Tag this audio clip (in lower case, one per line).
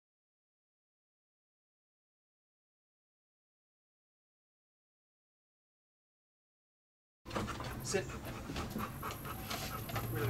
whimper (dog)
speech